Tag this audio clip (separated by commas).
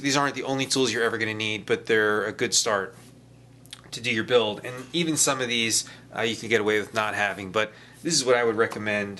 Speech